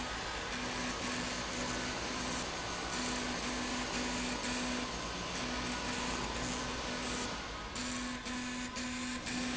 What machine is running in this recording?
slide rail